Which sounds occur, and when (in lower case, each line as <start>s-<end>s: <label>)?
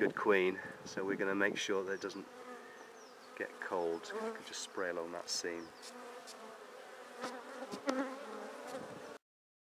0.0s-0.1s: wind noise (microphone)
0.0s-0.5s: male speech
0.0s-9.2s: wind
0.0s-9.2s: buzz
0.5s-0.8s: breathing
0.6s-1.1s: wind noise (microphone)
0.9s-2.2s: male speech
1.5s-1.6s: wind noise (microphone)
1.7s-2.2s: bird song
2.4s-3.0s: breathing
2.8s-3.3s: bird song
3.3s-4.4s: male speech
3.7s-4.0s: bird song
4.2s-4.8s: bird song
4.7s-5.7s: male speech
5.5s-5.8s: bird song
9.0s-9.1s: bird song